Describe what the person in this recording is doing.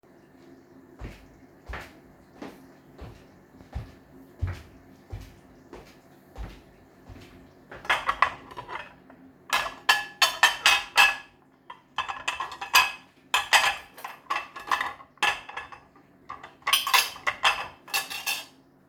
I walked towards the kitchen and started organizing the cutlery.